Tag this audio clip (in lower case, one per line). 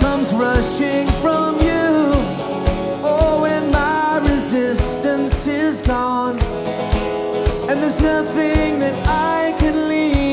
music